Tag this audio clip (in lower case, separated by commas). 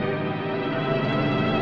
musical instrument, music